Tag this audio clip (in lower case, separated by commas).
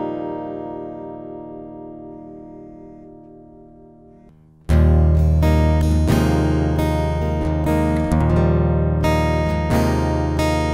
music, guitar, acoustic guitar, plucked string instrument, musical instrument